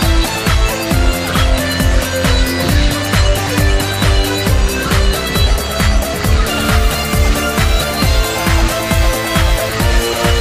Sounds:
music, electronic music, techno

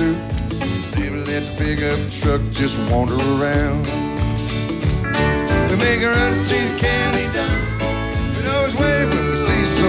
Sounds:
music

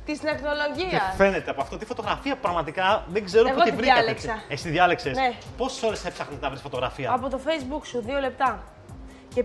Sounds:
speech, music

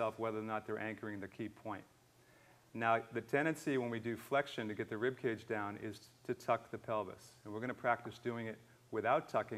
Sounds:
speech

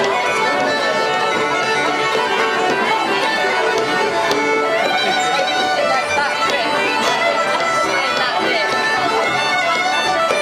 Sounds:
musical instrument, violin, music

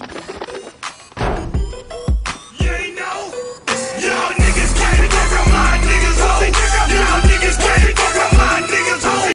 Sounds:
music, animal, bird

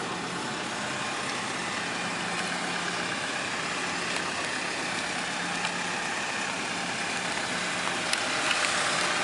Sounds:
truck, vehicle, speech

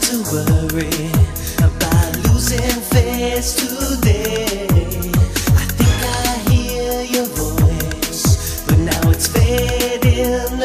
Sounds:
music

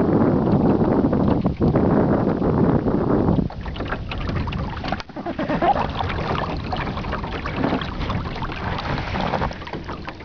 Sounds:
wind, wind noise (microphone), wind noise

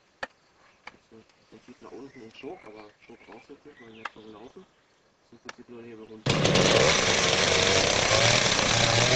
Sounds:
chainsaw, speech

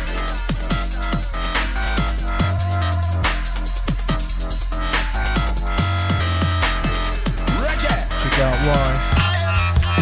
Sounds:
music, electronic music, dubstep, drum and bass

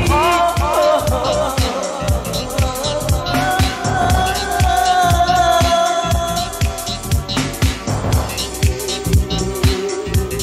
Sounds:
electronic music, music, disco

